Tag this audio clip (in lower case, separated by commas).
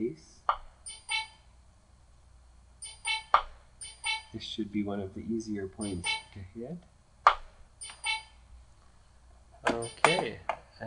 speech, music